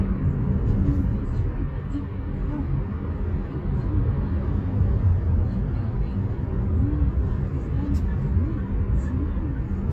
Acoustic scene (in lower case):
car